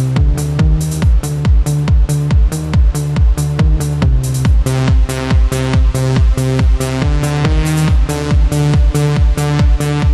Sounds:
Techno, Music, Electronic music

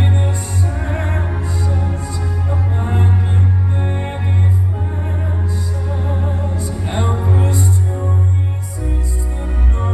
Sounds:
Music, Sad music

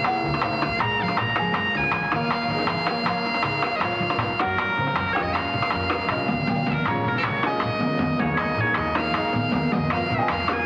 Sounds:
playing bagpipes

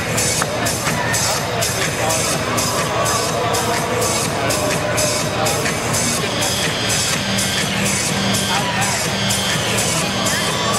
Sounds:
Music, Speech

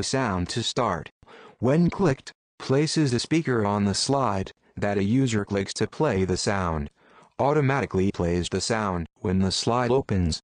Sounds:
Speech

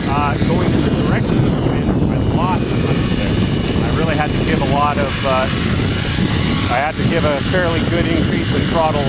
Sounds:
airscrew, Helicopter, Speech, Aircraft

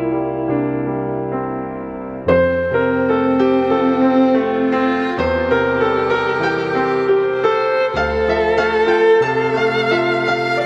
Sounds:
Musical instrument, Music, Violin

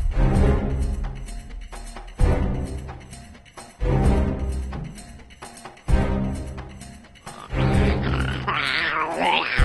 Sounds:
Music

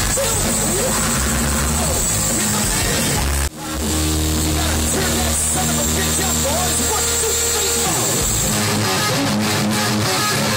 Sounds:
Speech, Music, outside, urban or man-made

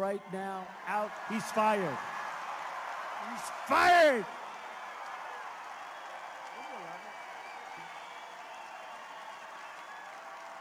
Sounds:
people booing

